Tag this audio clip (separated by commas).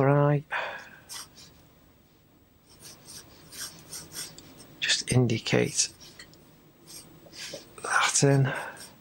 Speech, Writing, inside a small room